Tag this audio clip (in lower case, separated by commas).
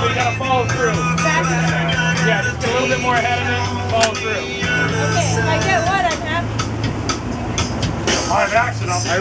music, water vehicle, speech, speedboat, vehicle